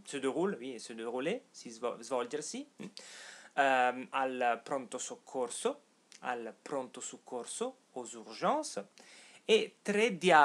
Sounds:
speech

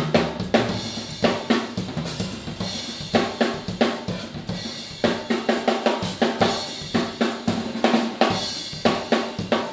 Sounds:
drum
drum kit
snare drum
rimshot
drum roll
percussion
bass drum

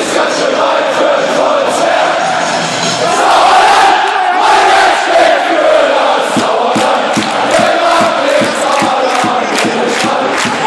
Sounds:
speech
music

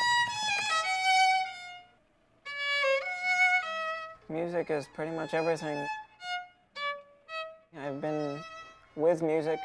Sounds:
music
speech

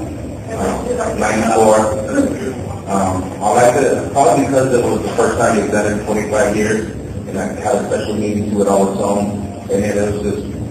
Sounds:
speech

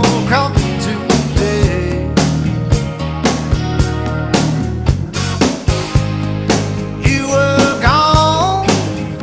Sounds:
music

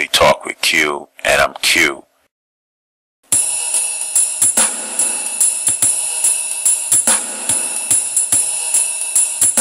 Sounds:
hi-hat

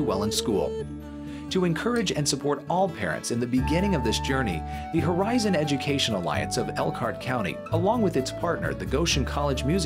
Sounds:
speech
music

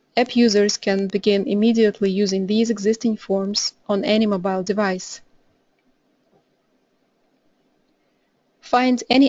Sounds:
speech

